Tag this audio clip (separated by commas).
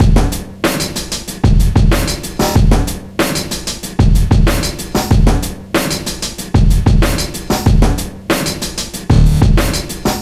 Percussion, Musical instrument, Drum kit, Music